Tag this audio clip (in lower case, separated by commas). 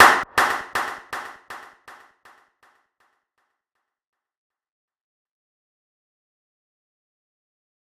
clapping, hands